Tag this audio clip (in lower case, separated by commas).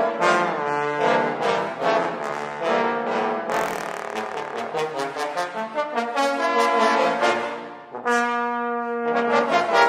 trombone, brass instrument, playing trombone